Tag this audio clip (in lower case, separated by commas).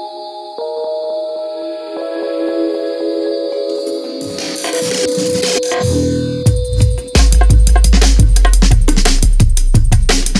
music, drum and bass, electronic music